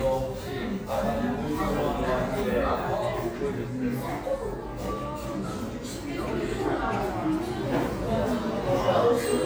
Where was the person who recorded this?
in a cafe